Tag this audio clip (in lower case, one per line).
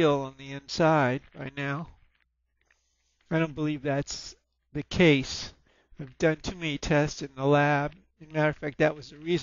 speech